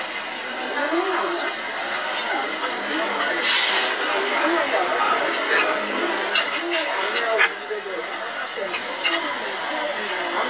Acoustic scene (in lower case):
restaurant